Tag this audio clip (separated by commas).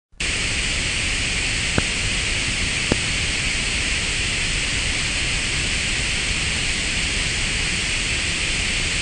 White noise